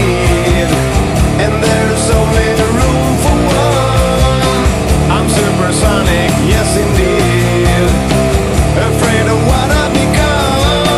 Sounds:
music

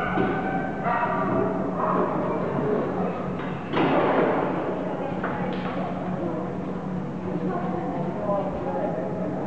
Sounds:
dog, bow-wow, animal, domestic animals, speech

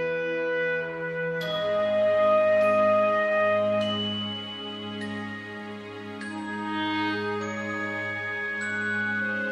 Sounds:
music, tender music

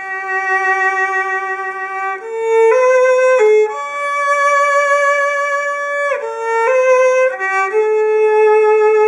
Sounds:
bowed string instrument, playing violin, violin, musical instrument, music, classical music, inside a small room

